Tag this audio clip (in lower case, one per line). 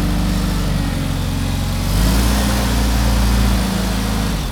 engine
accelerating